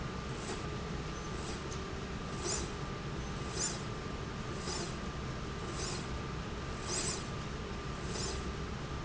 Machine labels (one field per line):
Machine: slide rail